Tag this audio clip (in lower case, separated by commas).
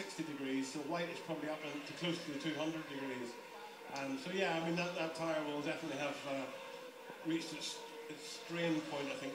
speech, vehicle, inside a small room